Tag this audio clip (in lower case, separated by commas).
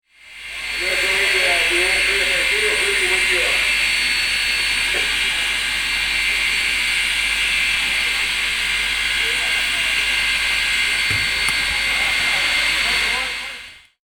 train, rail transport, vehicle